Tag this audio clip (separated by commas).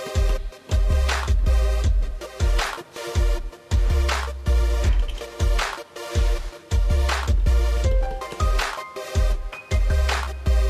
Music